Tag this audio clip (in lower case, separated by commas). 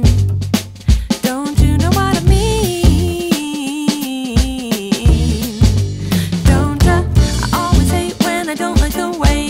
music